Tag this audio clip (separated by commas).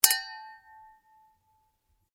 Chink, Glass